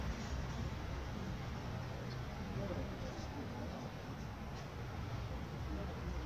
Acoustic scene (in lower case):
residential area